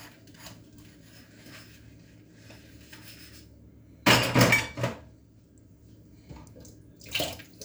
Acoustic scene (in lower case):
kitchen